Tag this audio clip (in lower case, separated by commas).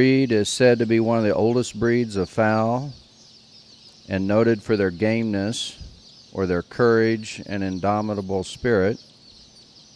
speech